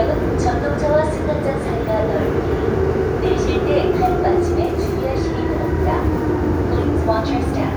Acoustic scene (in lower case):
subway train